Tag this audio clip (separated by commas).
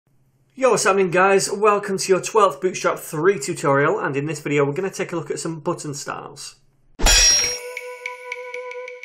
Music, Speech